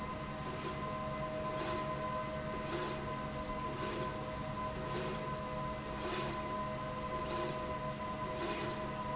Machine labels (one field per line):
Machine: slide rail